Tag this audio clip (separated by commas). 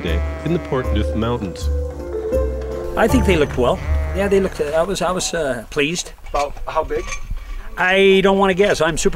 Music, Bleat, Speech